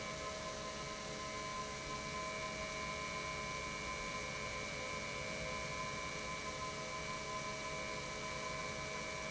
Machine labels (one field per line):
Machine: pump